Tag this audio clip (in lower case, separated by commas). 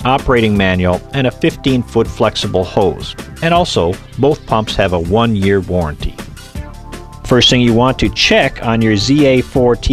speech, music